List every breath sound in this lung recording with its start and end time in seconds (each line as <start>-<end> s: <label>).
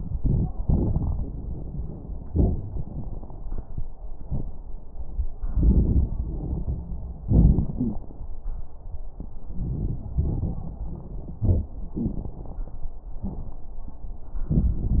0.00-0.50 s: inhalation
0.00-0.50 s: crackles
0.59-3.92 s: exhalation
0.59-3.92 s: crackles
5.48-7.21 s: inhalation
5.48-7.21 s: crackles
7.23-8.21 s: exhalation
7.23-8.21 s: crackles
9.43-10.13 s: inhalation
9.43-10.13 s: crackles
10.14-10.85 s: exhalation
10.14-10.85 s: crackles
11.36-11.71 s: inhalation
11.36-11.71 s: crackles
11.95-12.93 s: exhalation
11.95-12.93 s: crackles
14.55-15.00 s: inhalation
14.55-15.00 s: crackles